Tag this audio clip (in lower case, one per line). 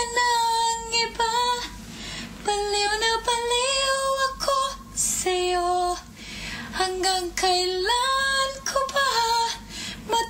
female singing